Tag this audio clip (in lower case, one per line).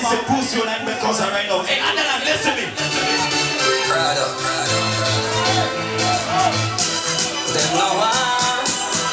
music
speech